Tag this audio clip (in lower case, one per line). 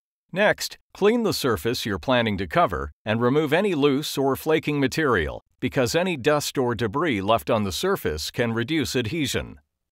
speech